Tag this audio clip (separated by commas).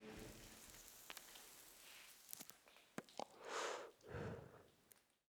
Respiratory sounds, Breathing